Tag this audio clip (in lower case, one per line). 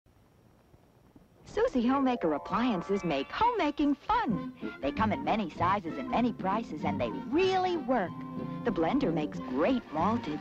television